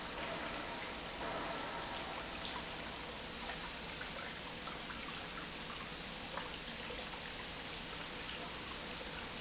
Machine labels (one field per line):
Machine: pump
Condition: normal